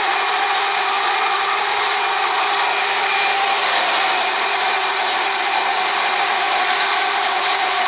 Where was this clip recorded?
on a subway train